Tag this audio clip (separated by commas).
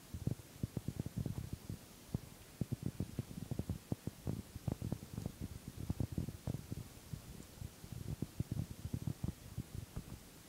Fire